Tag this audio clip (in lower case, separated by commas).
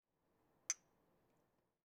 chink, glass